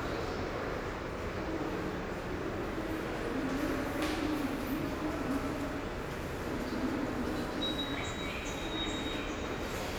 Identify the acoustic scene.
subway station